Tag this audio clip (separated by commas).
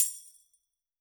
Music, Tambourine, Percussion, Musical instrument